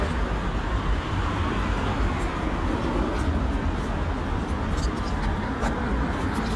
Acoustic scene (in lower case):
residential area